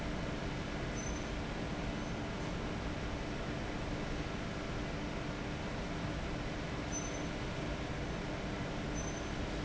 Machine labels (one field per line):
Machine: fan